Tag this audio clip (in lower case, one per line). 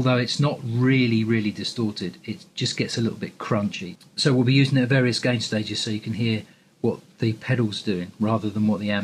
speech